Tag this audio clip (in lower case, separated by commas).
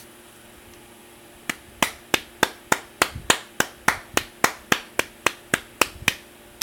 hands, clapping